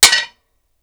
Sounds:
glass, hammer, tools

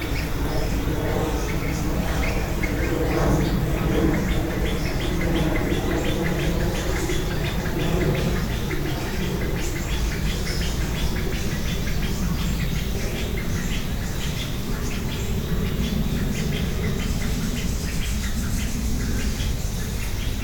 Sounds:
tweet, livestock, fowl, bird, wild animals, bird vocalization, animal

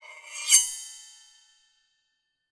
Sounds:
domestic sounds, cutlery

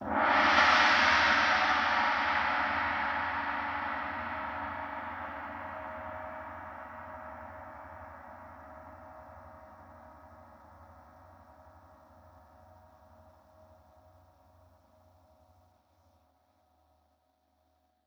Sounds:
musical instrument, percussion, music, gong

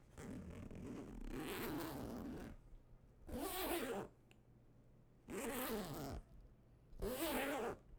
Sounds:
domestic sounds, zipper (clothing)

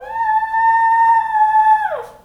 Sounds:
animal, pets, dog

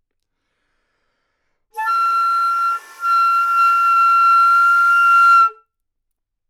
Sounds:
musical instrument, wind instrument, music

